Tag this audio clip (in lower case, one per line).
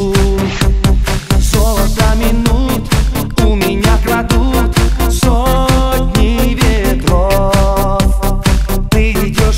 music